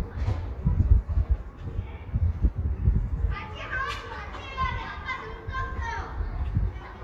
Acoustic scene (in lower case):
residential area